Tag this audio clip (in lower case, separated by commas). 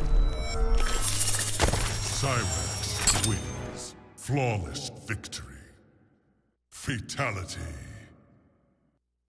music, speech